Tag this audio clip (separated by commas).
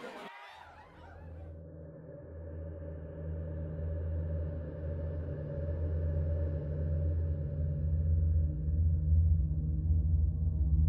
outside, urban or man-made